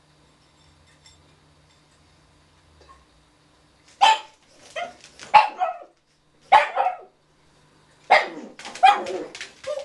Small dog barking a few times